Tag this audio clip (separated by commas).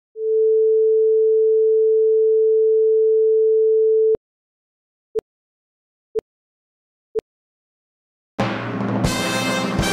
Sine wave